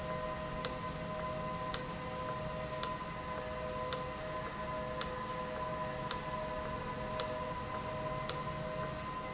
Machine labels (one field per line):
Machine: valve